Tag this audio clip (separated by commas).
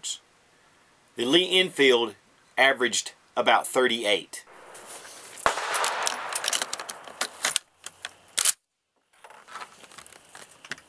Gunshot